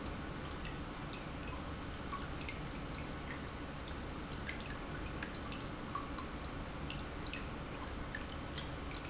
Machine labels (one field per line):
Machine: pump